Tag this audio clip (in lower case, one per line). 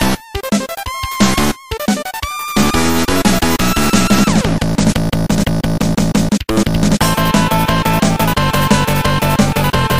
music